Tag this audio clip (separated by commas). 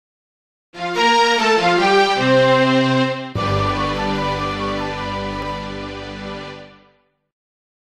Music